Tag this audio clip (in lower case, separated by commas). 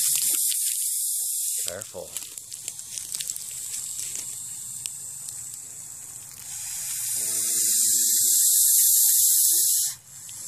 snake rattling